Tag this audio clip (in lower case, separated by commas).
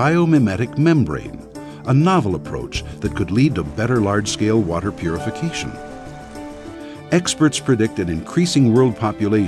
music, speech